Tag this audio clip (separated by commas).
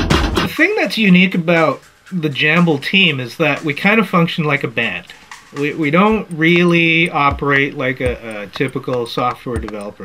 Speech, Music